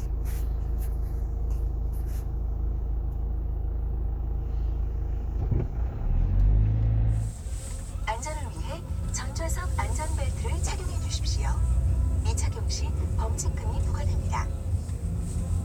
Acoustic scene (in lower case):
car